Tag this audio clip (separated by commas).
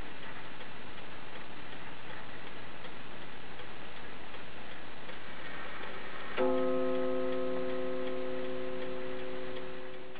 Tick-tock